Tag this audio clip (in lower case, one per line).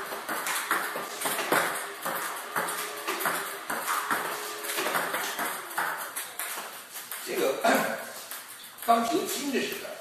playing table tennis